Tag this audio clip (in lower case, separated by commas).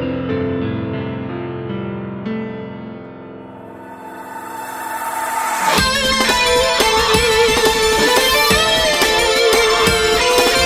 music